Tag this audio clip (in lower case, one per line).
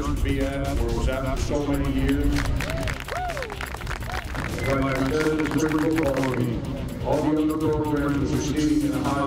crowd